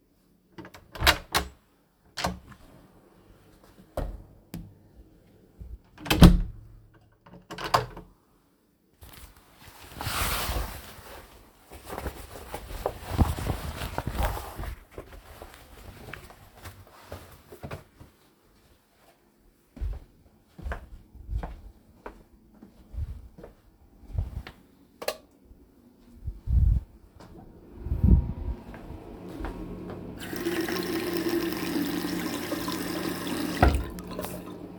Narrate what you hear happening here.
I open the door, step into the hallway, close the door, take my coat off, walk to the toilet door, turn the light on, open the door to the toilet, enter the toilet, turn the water on and then turn it off.